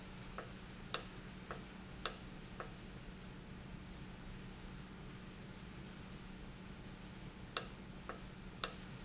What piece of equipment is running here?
valve